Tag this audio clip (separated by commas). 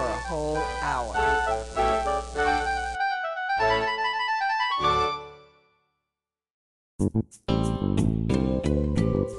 Speech, Music